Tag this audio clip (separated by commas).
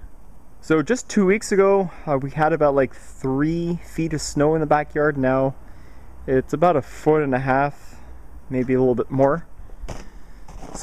Speech